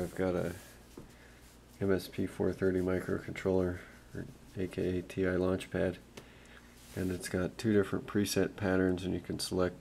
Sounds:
Speech

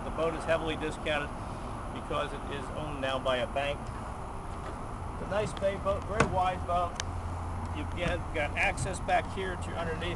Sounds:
Speech

